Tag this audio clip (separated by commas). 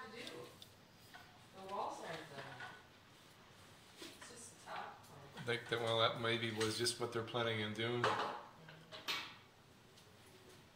Speech